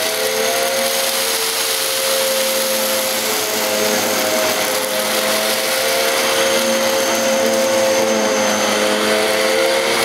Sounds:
inside a small room, vacuum cleaner

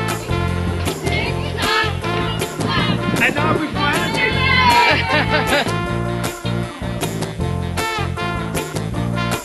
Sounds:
music, speech

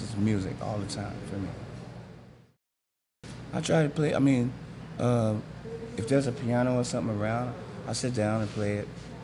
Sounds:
speech

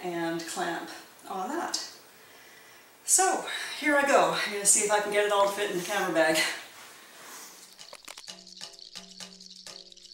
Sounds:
speech

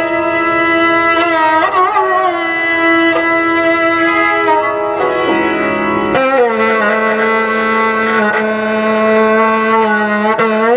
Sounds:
carnatic music, musical instrument, music

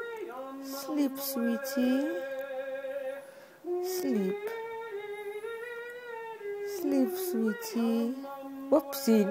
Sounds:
speech, music

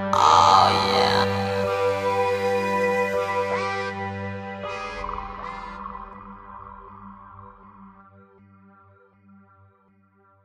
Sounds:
electronic music, music

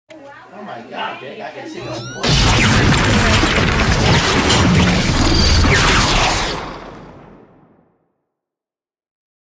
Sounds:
speech

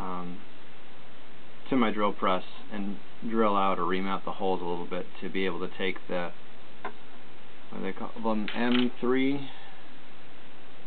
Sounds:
speech

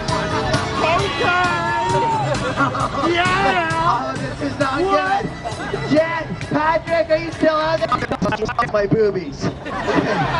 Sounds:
music, speech

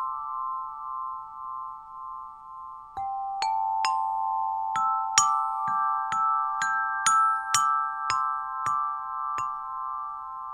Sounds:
xylophone, tubular bells, glockenspiel

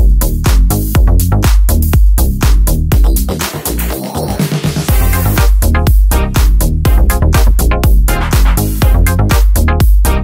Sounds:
background music, music

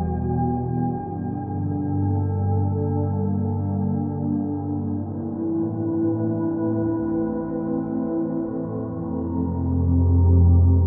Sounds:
music, new-age music

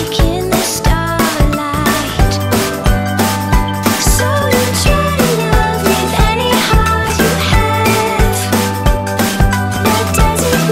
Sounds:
music

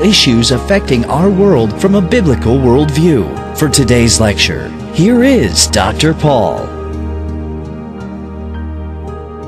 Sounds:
music, speech

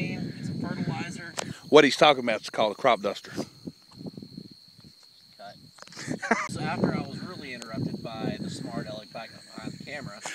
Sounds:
speech

